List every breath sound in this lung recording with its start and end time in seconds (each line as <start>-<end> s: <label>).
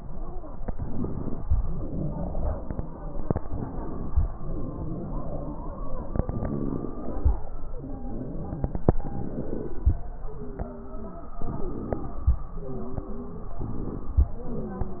0.61-1.43 s: inhalation
0.61-1.43 s: wheeze
1.48-3.38 s: exhalation
1.48-3.38 s: wheeze
3.40-4.22 s: inhalation
3.40-4.22 s: wheeze
4.31-7.34 s: exhalation
4.31-7.34 s: wheeze
7.71-8.83 s: inhalation
7.71-8.83 s: wheeze
8.90-10.02 s: exhalation
8.90-10.02 s: wheeze
10.25-11.33 s: inhalation
10.25-11.33 s: wheeze
11.36-12.31 s: exhalation
11.36-12.31 s: wheeze
12.49-13.57 s: inhalation
12.49-13.57 s: wheeze
13.62-14.35 s: exhalation
13.64-14.31 s: wheeze
14.33-15.00 s: inhalation
14.33-15.00 s: wheeze